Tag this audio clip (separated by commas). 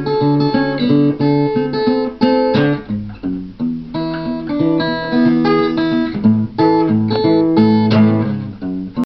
Plucked string instrument, Musical instrument, Guitar, Music, Acoustic guitar, Strum